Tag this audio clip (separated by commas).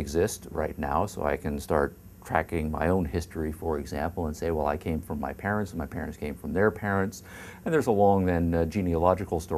Speech